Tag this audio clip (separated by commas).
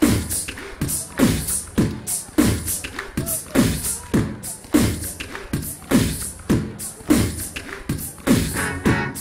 Music